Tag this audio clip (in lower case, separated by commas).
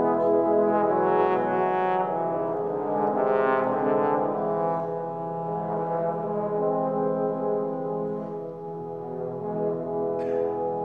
playing trombone, trombone, music